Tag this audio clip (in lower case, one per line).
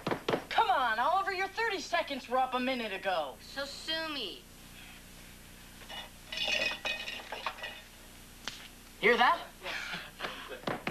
speech
inside a small room